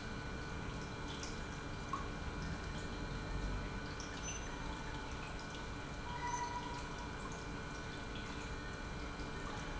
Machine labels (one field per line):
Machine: pump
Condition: normal